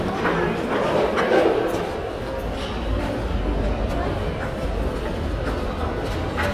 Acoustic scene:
crowded indoor space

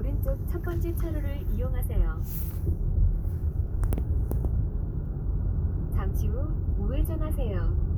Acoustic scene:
car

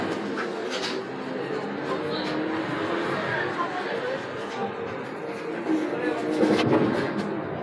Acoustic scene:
bus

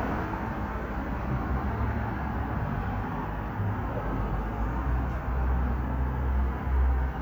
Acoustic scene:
street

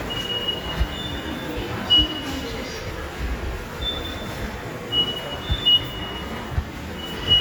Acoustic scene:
subway station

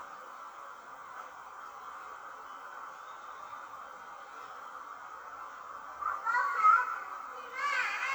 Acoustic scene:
park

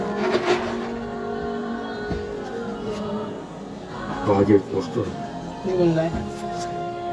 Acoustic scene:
cafe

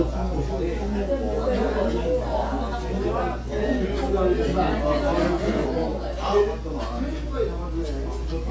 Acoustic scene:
crowded indoor space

